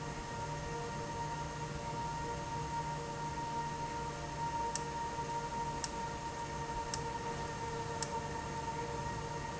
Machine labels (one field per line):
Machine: valve